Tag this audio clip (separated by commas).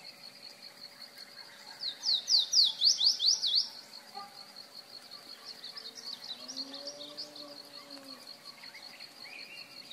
canary calling